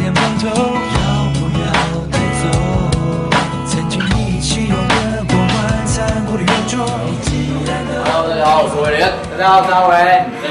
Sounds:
soundtrack music, music, speech

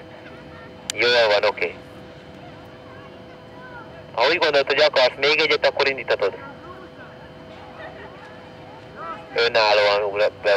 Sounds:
speech

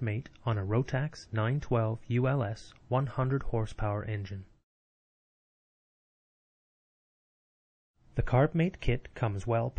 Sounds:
speech

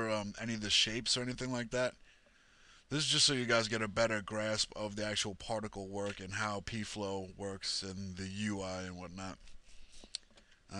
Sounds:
speech

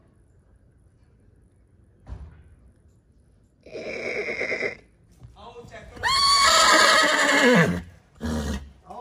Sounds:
horse neighing

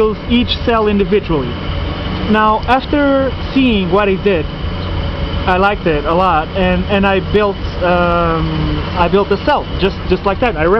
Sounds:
speech

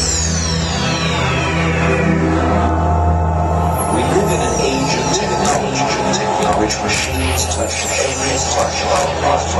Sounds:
music, speech

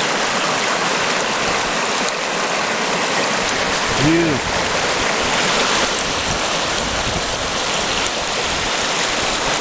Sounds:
water

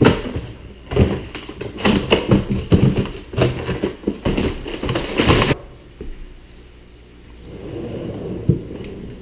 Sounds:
opening or closing drawers

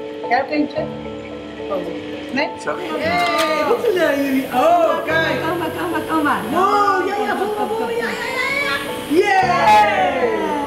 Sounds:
speech, music

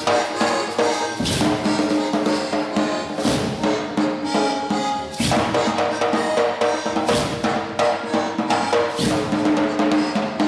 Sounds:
music

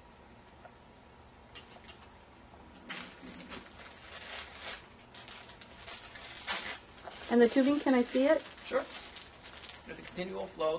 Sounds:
speech

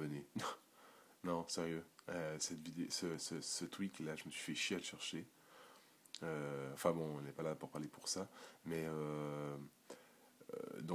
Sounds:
speech

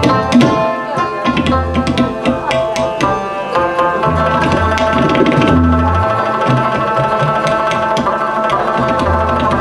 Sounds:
musical instrument, speech, tabla, music

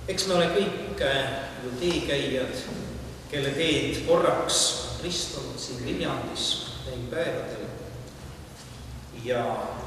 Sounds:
speech

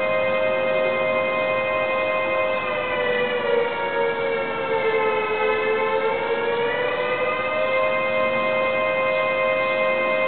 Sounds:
civil defense siren, siren

